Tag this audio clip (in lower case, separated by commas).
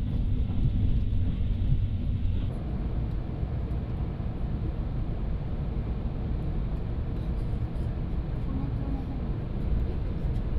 volcano explosion